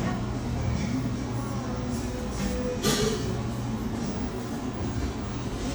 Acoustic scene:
cafe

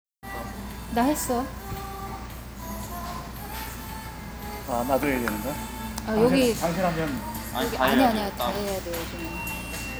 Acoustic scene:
restaurant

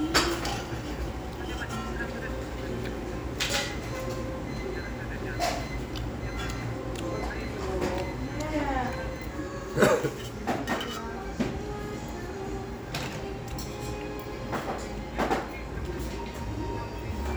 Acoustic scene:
restaurant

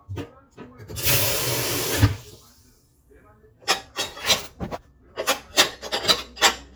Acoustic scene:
kitchen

